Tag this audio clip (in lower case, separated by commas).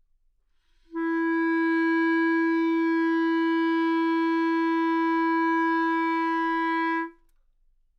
wind instrument, musical instrument, music